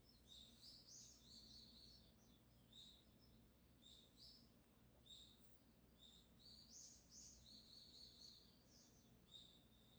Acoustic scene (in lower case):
park